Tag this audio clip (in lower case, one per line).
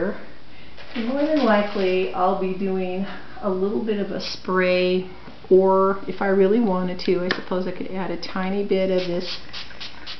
speech